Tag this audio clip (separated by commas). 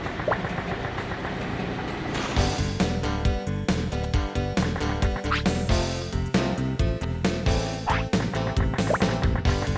Music